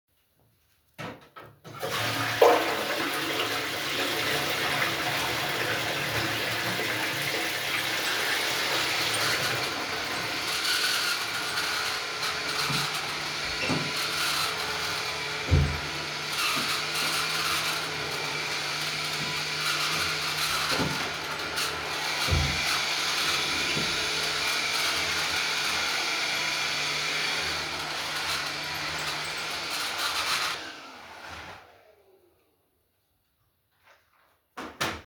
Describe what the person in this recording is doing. I flushed the toilet while someone was vacuuming the floor. After that i opened and closed the toilet door.